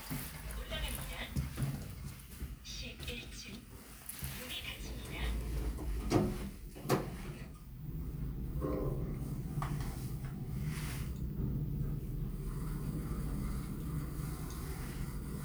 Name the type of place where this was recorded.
elevator